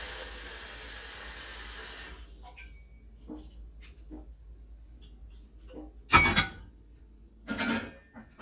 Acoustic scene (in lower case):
kitchen